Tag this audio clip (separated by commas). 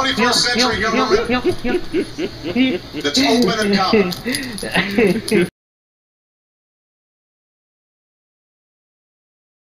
monologue, Male speech, Speech